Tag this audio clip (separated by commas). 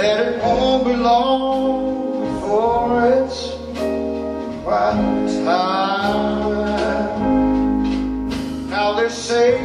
Music